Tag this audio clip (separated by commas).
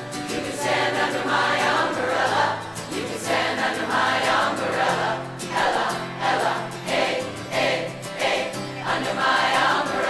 singing choir